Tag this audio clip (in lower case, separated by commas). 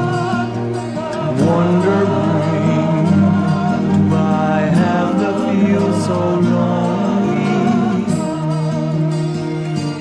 music, singing